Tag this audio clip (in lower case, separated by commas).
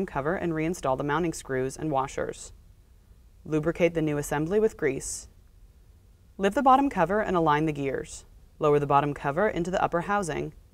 speech